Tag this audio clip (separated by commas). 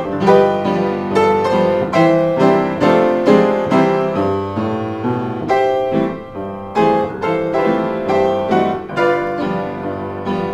Keyboard (musical), Piano, Musical instrument, inside a small room, Music